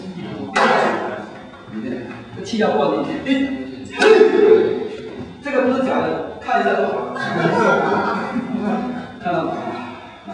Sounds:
inside a large room or hall
speech

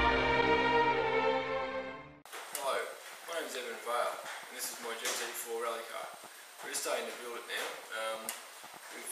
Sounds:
music
speech

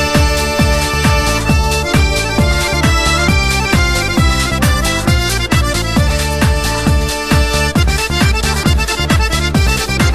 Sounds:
dance music
music

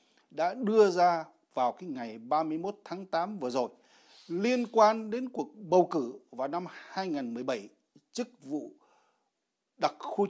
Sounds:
speech

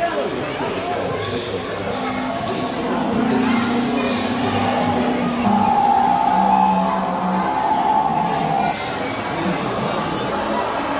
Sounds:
dinosaurs bellowing

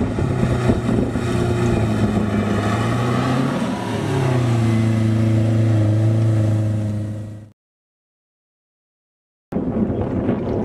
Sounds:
gurgling

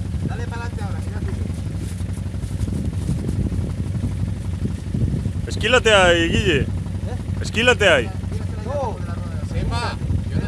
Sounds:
speech

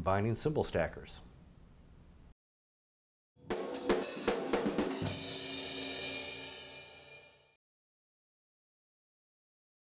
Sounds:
musical instrument
cymbal
speech
hi-hat
drum
music
drum kit

